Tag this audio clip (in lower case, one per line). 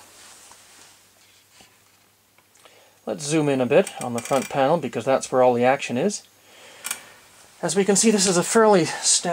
inside a small room
speech